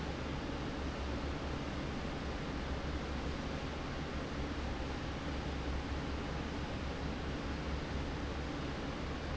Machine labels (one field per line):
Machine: fan